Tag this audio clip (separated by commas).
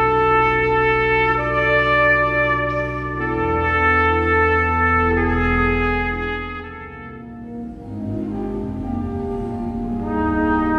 Trumpet, Music